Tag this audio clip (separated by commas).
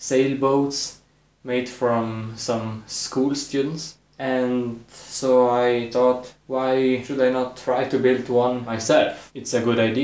Speech